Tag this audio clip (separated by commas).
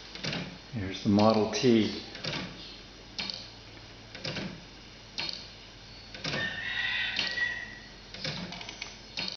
Tick-tock, Speech